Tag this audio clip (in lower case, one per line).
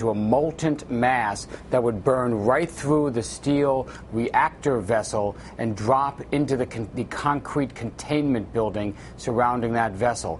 speech